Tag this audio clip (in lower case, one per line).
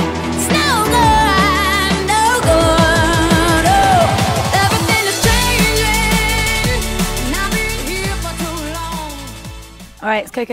song
music